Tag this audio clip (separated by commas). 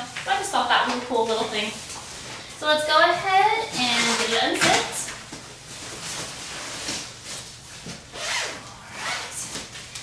Speech